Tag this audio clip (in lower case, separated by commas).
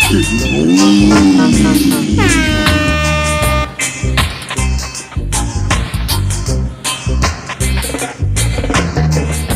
reggae, music